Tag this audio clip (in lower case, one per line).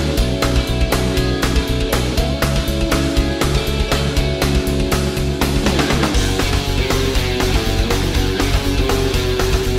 music
theme music